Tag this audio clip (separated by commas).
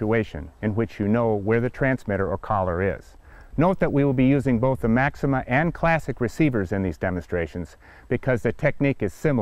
Speech